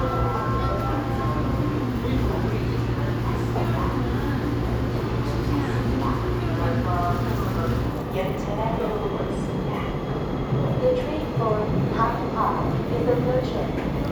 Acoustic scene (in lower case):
subway station